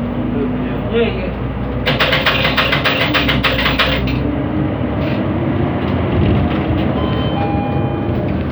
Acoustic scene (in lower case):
bus